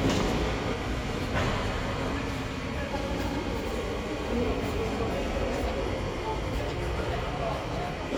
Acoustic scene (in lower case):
subway station